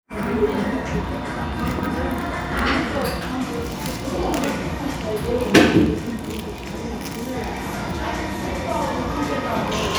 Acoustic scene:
cafe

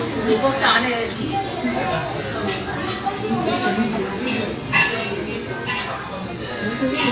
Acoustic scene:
restaurant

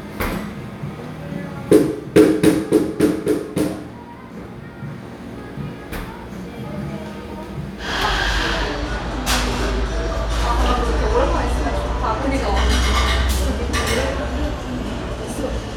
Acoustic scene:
cafe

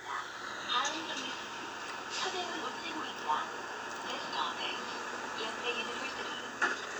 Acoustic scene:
bus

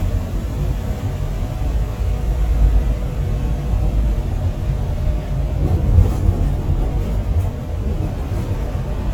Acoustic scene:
bus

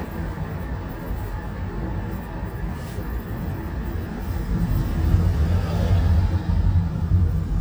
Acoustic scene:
car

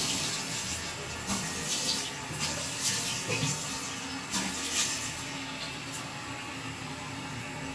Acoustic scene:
restroom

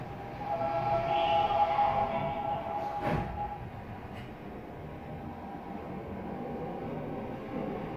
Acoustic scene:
subway train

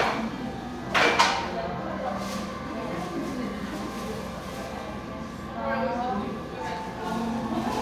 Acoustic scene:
crowded indoor space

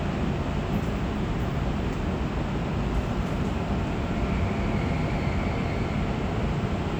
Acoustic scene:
subway train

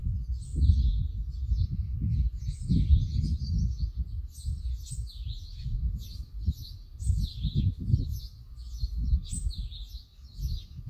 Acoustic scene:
park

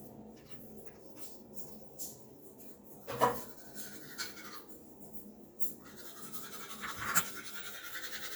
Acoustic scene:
restroom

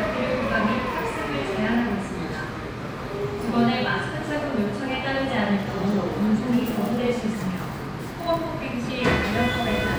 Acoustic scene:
subway station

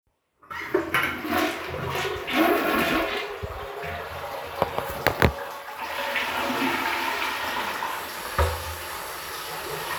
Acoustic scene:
restroom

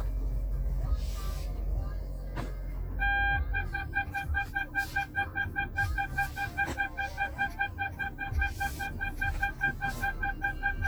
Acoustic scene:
car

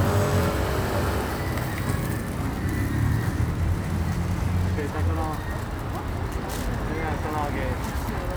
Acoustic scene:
street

